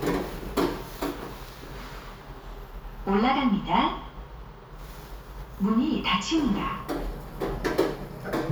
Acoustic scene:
elevator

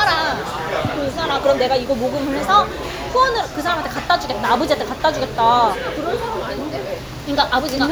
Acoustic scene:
restaurant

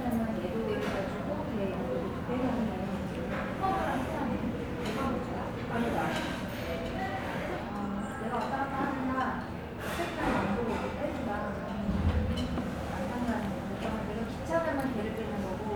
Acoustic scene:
restaurant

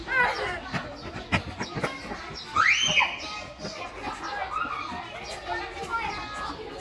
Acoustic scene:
park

